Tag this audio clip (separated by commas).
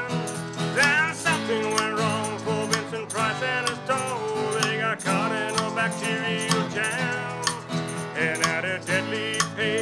Independent music, Music